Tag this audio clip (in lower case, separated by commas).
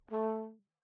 music, musical instrument, brass instrument